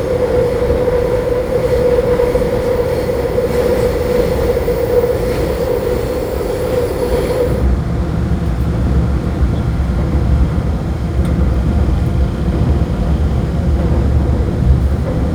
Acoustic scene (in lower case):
subway train